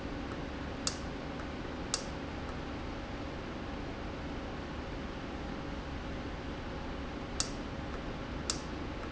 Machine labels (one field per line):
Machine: valve